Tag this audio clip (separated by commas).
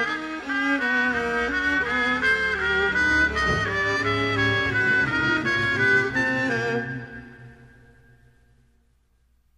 Wind instrument